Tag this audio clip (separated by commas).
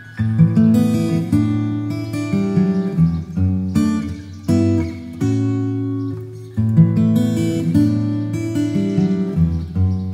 Crackle, Music